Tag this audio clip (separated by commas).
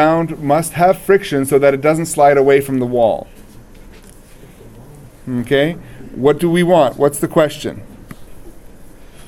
Speech